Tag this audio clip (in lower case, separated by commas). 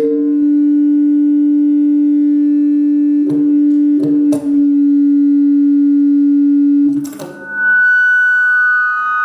musical instrument, music